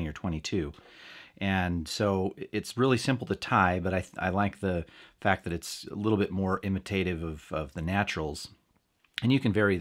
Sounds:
Speech

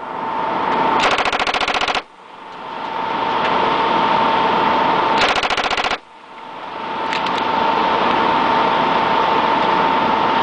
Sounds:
machine gun shooting, Machine gun

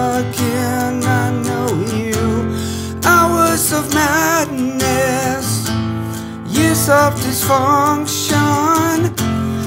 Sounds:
Music

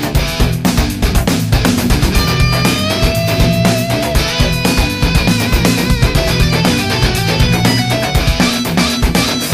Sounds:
Exciting music, Music

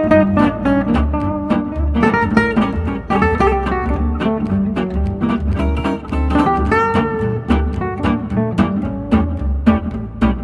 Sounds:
Guitar, Strum, Music, Jazz, Plucked string instrument, Musical instrument

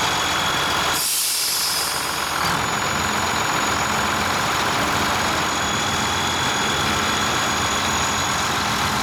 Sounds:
Speech

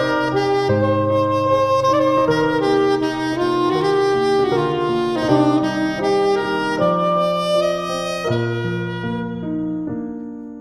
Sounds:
Music

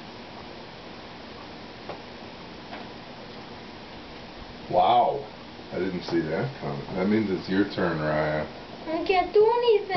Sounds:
inside a small room, Speech

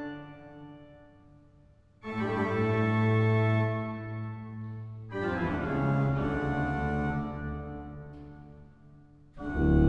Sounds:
Keyboard (musical), Musical instrument, Music, Hammond organ

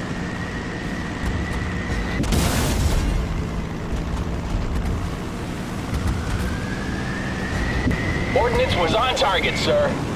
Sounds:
Speech

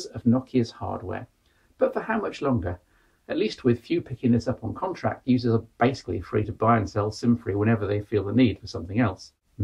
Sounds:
Speech

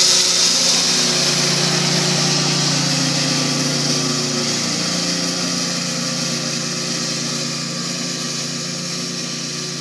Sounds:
lawn mowing

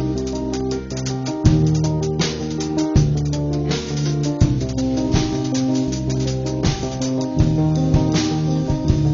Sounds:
Music

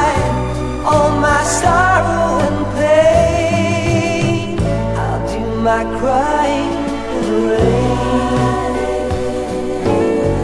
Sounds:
Music

